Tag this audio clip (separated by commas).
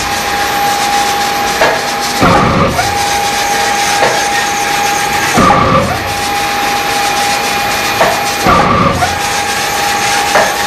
Printer